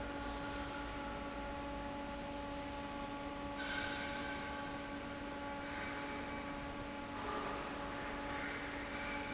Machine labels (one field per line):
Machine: fan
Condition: normal